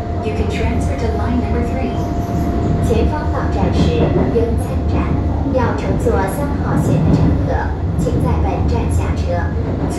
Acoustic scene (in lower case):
subway train